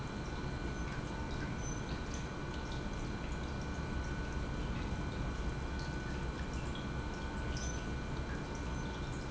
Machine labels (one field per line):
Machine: pump